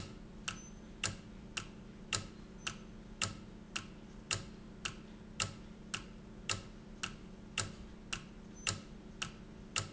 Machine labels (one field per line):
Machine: valve